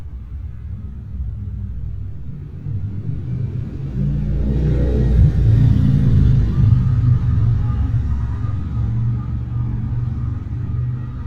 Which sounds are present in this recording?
medium-sounding engine